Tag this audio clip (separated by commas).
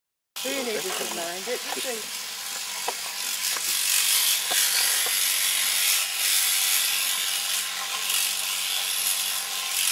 Speech